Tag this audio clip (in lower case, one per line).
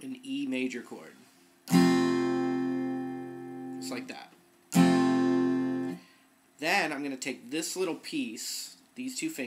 speech
music
acoustic guitar